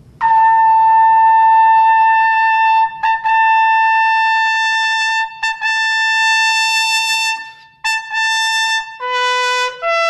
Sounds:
Musical instrument, Brass instrument, Music, Trumpet

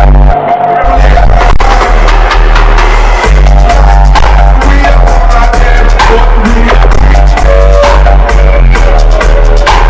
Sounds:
Music

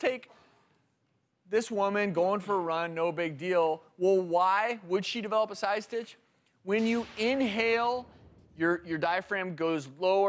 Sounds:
Speech

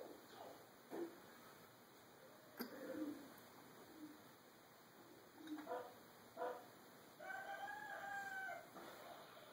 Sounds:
Bark

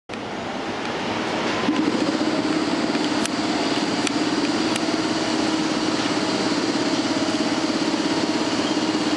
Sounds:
Rail transport, Train, Railroad car, Vehicle

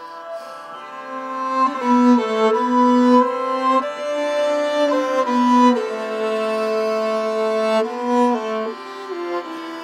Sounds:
Music, Violin, Musical instrument

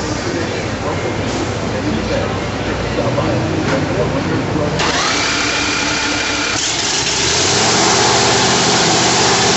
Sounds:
Vehicle, Speech

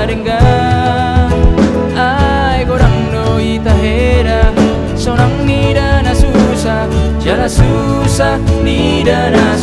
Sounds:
Drum, Music

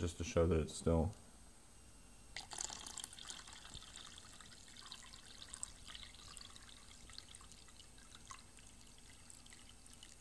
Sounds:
Speech, Drip

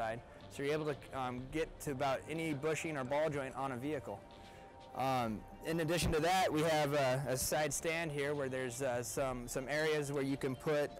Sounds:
Speech, Music

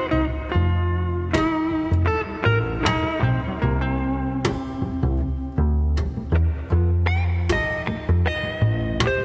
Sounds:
Music, Steel guitar

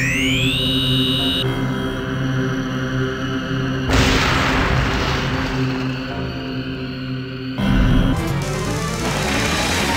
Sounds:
Music, Video game music

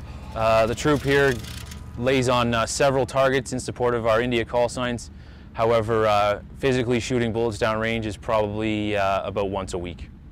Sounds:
Speech

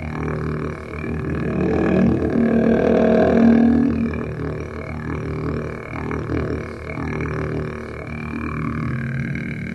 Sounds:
Music, Didgeridoo

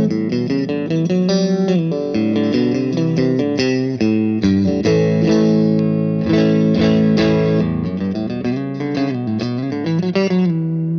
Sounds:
Electric guitar, Musical instrument, Music, Effects unit, Plucked string instrument, Guitar

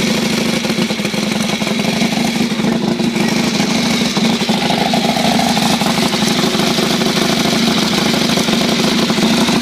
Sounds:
Idling, Vehicle

